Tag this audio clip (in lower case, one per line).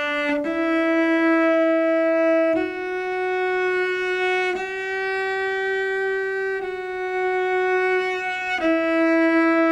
cello
playing cello
music
musical instrument